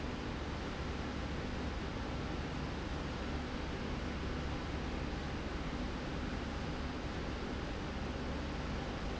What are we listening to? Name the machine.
slide rail